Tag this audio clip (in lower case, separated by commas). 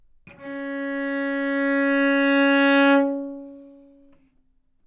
music, bowed string instrument, musical instrument